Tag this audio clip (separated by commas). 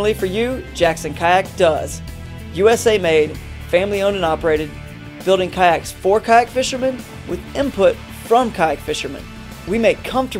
Speech, Music